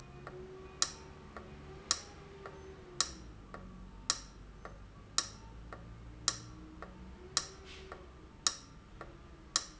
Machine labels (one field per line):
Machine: valve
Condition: abnormal